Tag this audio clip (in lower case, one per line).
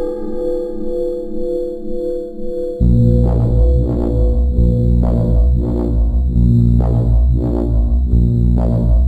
music